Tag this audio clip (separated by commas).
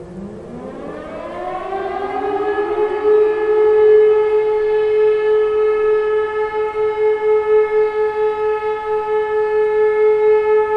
civil defense siren